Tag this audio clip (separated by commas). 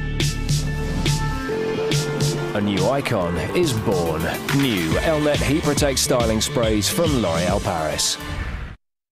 Speech, Music